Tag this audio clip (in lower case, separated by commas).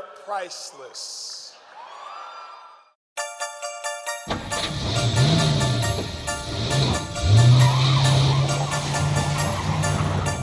music, speech